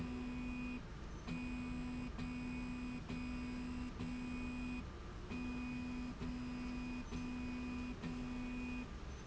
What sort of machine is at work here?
slide rail